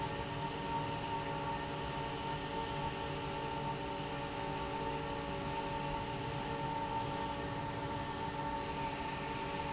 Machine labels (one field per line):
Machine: fan